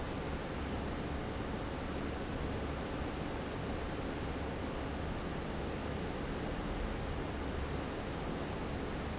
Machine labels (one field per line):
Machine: fan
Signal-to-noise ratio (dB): -6 dB